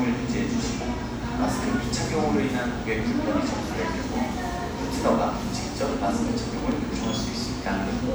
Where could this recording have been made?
in a cafe